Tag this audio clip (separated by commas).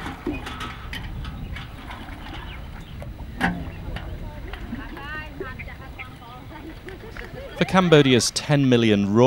Speech